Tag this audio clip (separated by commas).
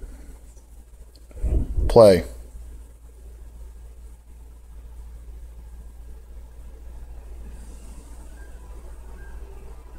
Speech, Music